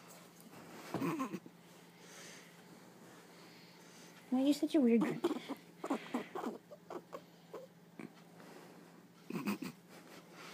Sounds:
pets, Animal, Speech

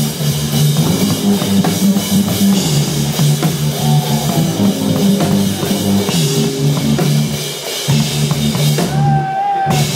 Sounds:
Rock music, Crowd, Music, Funk

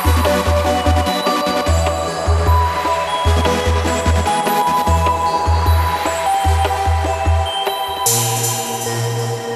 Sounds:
Music

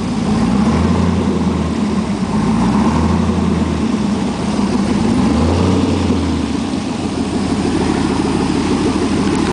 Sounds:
Engine, Medium engine (mid frequency)

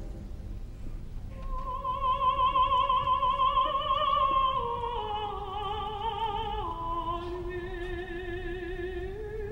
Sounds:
Opera, Singing

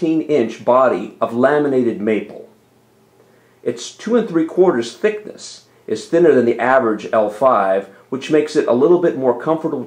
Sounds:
Speech

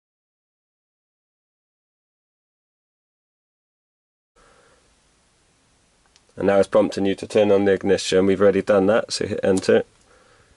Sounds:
Speech

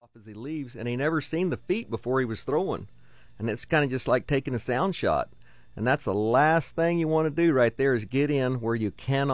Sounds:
Speech

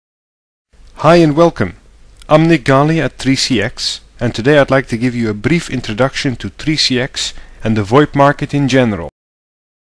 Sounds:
Speech synthesizer

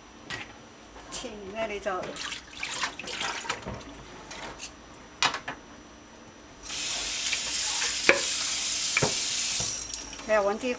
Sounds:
Speech

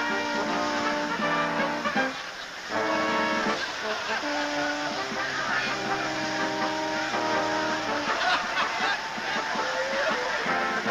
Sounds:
Music

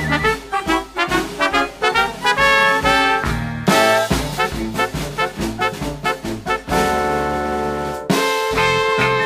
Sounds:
Orchestra

